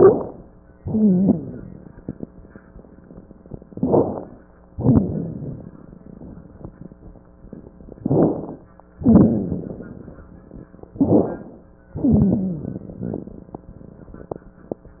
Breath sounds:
Inhalation: 0.00-0.46 s, 3.68-4.42 s, 8.01-8.62 s, 10.99-11.76 s
Exhalation: 0.81-1.56 s, 4.74-5.73 s, 9.03-10.34 s, 11.99-13.62 s
Wheeze: 0.00-0.46 s, 0.81-1.56 s, 3.68-4.42 s, 9.03-9.62 s, 10.99-11.42 s, 11.99-12.69 s
Rhonchi: 4.74-5.20 s
Crackles: 1.44-2.18 s, 4.74-5.73 s, 8.01-8.62 s, 9.62-10.40 s, 12.69-13.68 s

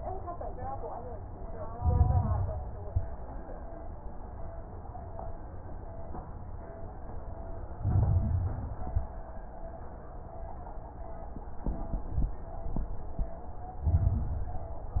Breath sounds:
Inhalation: 1.71-2.56 s, 7.83-8.81 s, 13.83-14.82 s
Exhalation: 2.81-3.13 s, 8.85-9.18 s
Crackles: 1.71-2.56 s, 2.81-3.13 s, 7.83-8.81 s, 8.85-9.18 s, 13.83-14.82 s

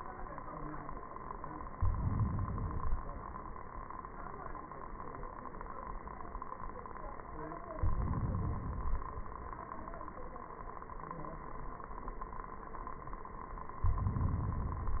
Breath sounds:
Inhalation: 1.65-2.73 s, 7.75-8.79 s

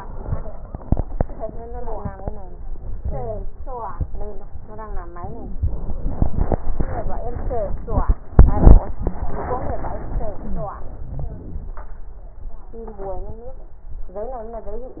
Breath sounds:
Inhalation: 5.14-5.61 s, 10.30-10.84 s
Exhalation: 10.87-11.86 s
Wheeze: 5.14-5.61 s, 10.30-10.84 s
Crackles: 10.87-11.86 s

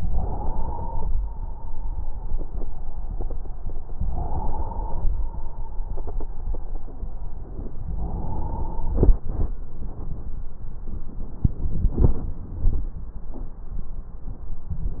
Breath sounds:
Inhalation: 0.00-1.10 s, 3.99-5.09 s, 7.97-9.00 s
Exhalation: 1.09-2.52 s, 5.09-6.39 s

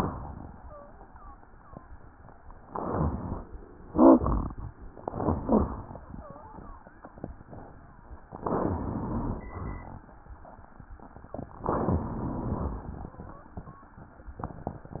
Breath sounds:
Inhalation: 2.64-3.49 s, 5.03-5.92 s, 8.43-9.47 s, 11.67-13.19 s
Exhalation: 3.91-4.76 s, 9.54-10.10 s
Wheeze: 0.53-0.93 s, 1.04-1.44 s, 1.50-1.90 s, 6.13-6.49 s, 6.60-6.96 s
Rhonchi: 3.91-4.23 s, 8.43-9.47 s, 11.67-13.19 s
Crackles: 5.03-5.92 s

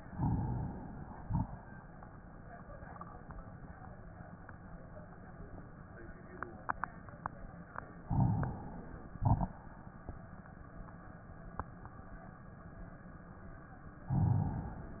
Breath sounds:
Inhalation: 0.04-1.18 s, 8.08-9.12 s, 14.15-15.00 s
Exhalation: 1.20-1.63 s, 9.22-9.66 s
Crackles: 0.04-1.18 s, 1.20-1.63 s, 8.08-9.12 s, 9.22-9.66 s, 14.15-15.00 s

